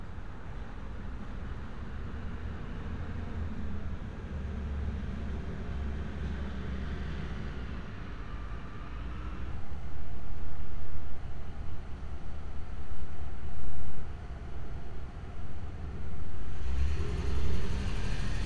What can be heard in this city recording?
engine of unclear size